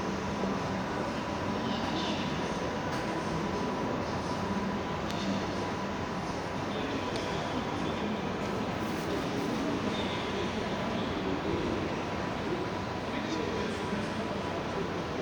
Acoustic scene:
crowded indoor space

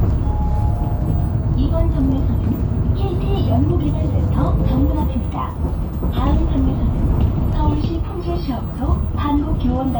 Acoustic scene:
bus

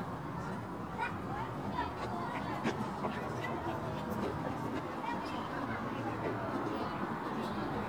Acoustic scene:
residential area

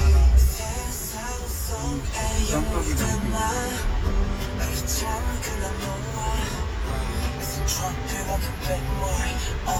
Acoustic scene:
car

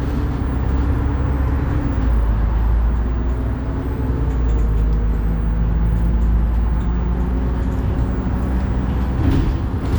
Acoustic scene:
bus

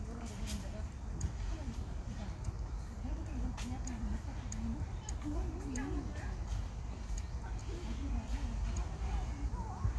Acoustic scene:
park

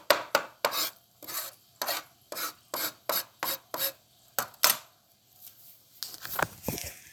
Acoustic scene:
kitchen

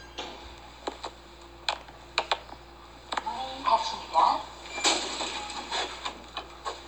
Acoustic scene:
elevator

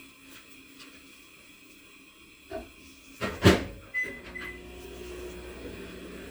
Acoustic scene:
kitchen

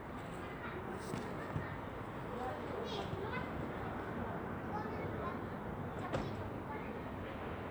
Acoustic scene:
residential area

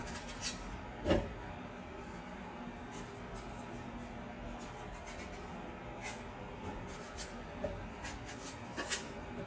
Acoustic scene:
kitchen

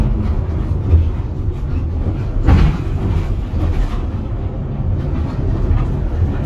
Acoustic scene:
bus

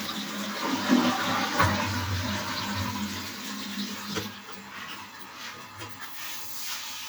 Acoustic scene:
restroom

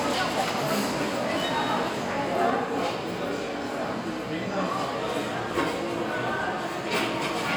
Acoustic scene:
restaurant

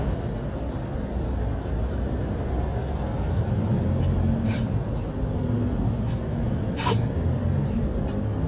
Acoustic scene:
residential area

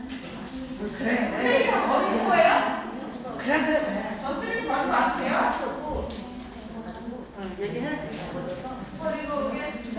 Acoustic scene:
crowded indoor space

